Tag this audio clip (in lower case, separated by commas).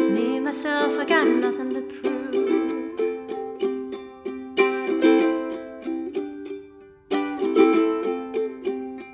playing ukulele